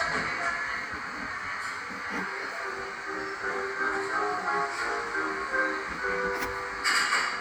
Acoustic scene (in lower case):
cafe